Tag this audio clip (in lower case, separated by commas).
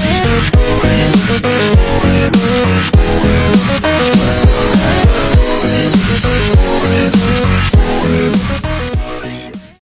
music, electronic music, dubstep